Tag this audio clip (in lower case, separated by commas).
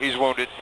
speech, human voice, man speaking